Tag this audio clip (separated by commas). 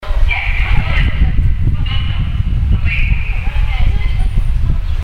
Subway, Vehicle, Rail transport, Wind